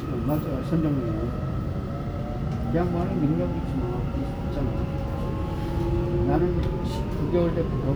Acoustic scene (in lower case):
subway train